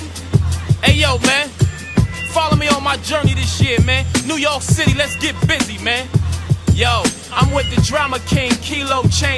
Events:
0.0s-9.3s: music
0.8s-1.5s: rapping
2.3s-6.1s: rapping
6.6s-7.2s: rapping
7.3s-9.3s: rapping

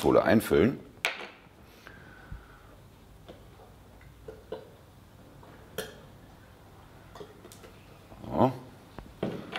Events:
0.0s-0.7s: man speaking
0.0s-9.5s: mechanisms
1.0s-1.3s: generic impact sounds
1.5s-2.9s: breathing
3.2s-3.4s: generic impact sounds
3.9s-4.6s: pour
5.7s-6.0s: generic impact sounds
7.0s-7.8s: pour
8.1s-8.7s: man speaking
8.9s-9.0s: tick
9.2s-9.5s: generic impact sounds

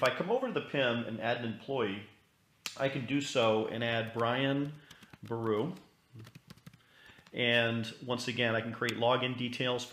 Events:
0.0s-9.9s: background noise
2.6s-2.7s: generic impact sounds
6.0s-6.3s: human voice
6.0s-6.7s: computer keyboard
6.8s-7.2s: breathing
8.0s-9.9s: man speaking

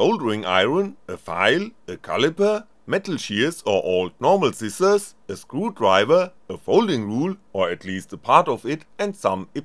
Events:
0.0s-0.9s: male speech
0.0s-9.6s: background noise
1.1s-1.7s: male speech
1.9s-2.6s: male speech
2.8s-4.1s: male speech
4.2s-5.1s: male speech
5.3s-6.3s: male speech
6.5s-7.4s: male speech
7.5s-8.8s: male speech
9.0s-9.4s: male speech
9.5s-9.6s: male speech

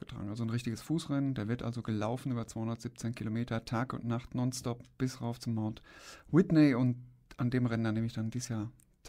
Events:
0.0s-5.7s: male speech
0.0s-9.0s: noise
6.3s-6.9s: male speech
7.3s-8.7s: male speech

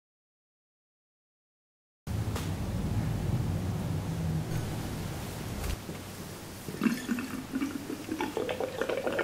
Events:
2.0s-9.2s: mechanisms
2.2s-2.5s: generic impact sounds
4.4s-4.6s: generic impact sounds
5.6s-5.7s: generic impact sounds
5.9s-6.0s: generic impact sounds
6.6s-9.2s: pour

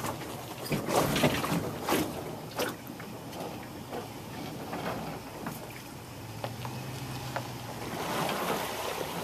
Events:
0.0s-9.2s: background noise
0.0s-9.2s: vehicle
2.5s-9.2s: water
5.3s-5.5s: generic impact sounds
8.2s-8.3s: tap

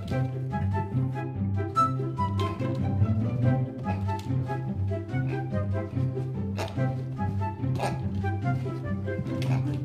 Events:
0.0s-9.8s: music
2.3s-2.8s: generic impact sounds
3.7s-4.2s: generic impact sounds
5.2s-5.4s: oink
6.5s-6.7s: dog
7.7s-7.9s: dog
8.1s-8.3s: generic impact sounds
8.4s-8.8s: generic impact sounds
9.5s-9.6s: oink
9.6s-9.8s: generic impact sounds

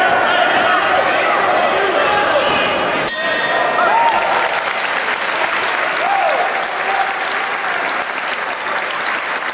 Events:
0.0s-9.5s: crowd
0.0s-9.5s: speech noise
0.2s-1.5s: male speech
1.7s-2.0s: male speech
3.0s-3.9s: ding
3.9s-4.3s: shout
3.9s-9.5s: applause
5.9s-6.7s: shout
6.7s-7.3s: male speech
7.4s-7.8s: male speech

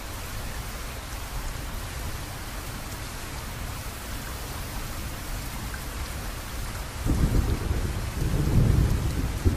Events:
0.0s-9.5s: rain
0.0s-9.5s: wind
7.0s-9.5s: thunderstorm

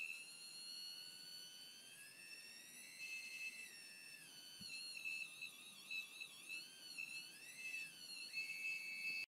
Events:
0.0s-9.2s: chirp tone
0.0s-9.2s: mechanisms
4.5s-4.6s: tap

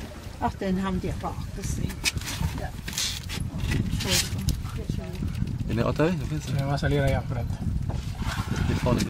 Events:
0.0s-9.0s: water vehicle
0.0s-9.0s: surf
0.0s-9.0s: wind noise (microphone)
0.4s-1.3s: female speech
1.3s-1.5s: tick
1.5s-1.9s: female speech
1.8s-2.6s: surface contact
2.5s-2.8s: human voice
2.8s-3.4s: surface contact
3.6s-4.4s: surface contact
4.0s-4.5s: female speech
4.4s-4.5s: tick
4.6s-5.2s: female speech
5.7s-7.4s: man speaking
7.9s-9.0s: surface contact
8.6s-9.0s: man speaking
8.9s-9.0s: tick

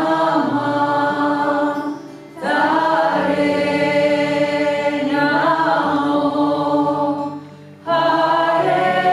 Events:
0.0s-2.1s: choir
0.0s-9.1s: music
2.3s-7.6s: choir
7.8s-9.1s: choir

